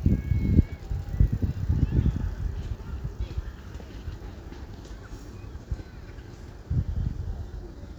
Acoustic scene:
residential area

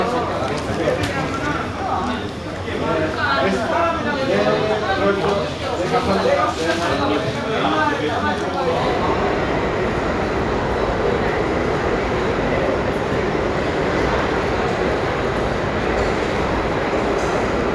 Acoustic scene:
crowded indoor space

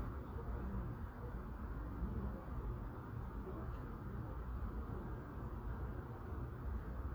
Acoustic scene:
residential area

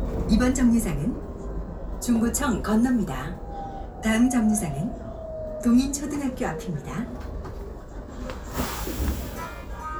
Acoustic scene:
bus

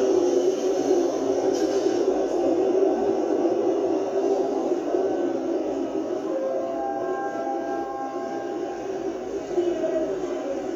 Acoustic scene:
subway station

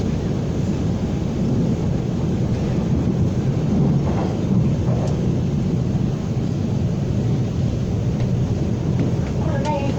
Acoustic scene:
subway train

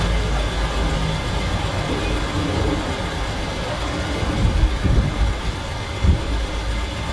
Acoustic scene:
street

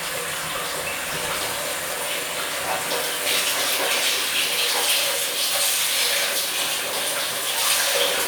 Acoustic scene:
restroom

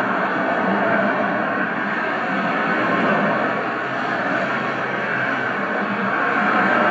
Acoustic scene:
street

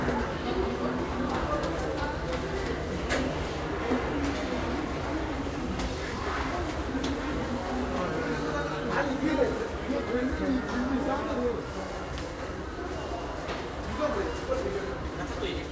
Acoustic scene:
crowded indoor space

